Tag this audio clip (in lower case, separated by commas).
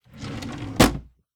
domestic sounds, drawer open or close